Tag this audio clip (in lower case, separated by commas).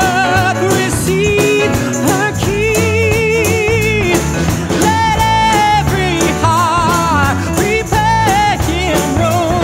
playing tambourine